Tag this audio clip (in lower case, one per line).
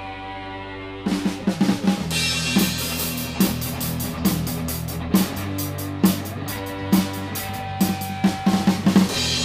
music